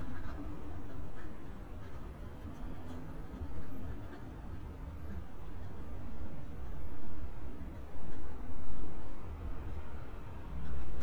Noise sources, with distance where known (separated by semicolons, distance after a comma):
background noise